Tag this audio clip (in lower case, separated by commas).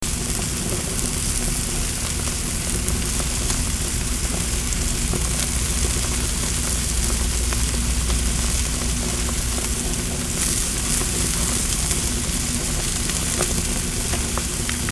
home sounds, frying (food)